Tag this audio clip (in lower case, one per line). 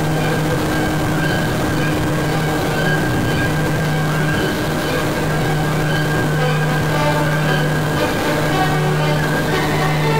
music